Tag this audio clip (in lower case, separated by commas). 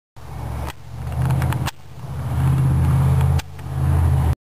vehicle, car, motor vehicle (road)